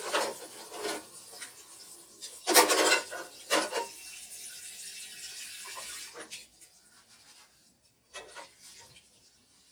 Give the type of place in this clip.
kitchen